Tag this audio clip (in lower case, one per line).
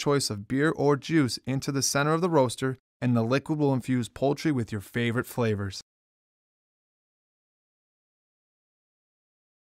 speech